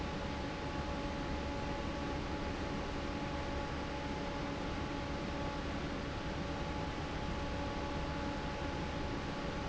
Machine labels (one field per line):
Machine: fan